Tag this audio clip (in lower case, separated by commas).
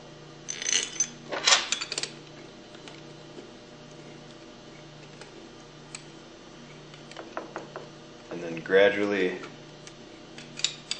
speech